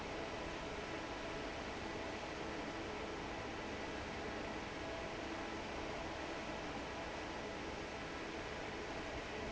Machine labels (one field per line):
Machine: fan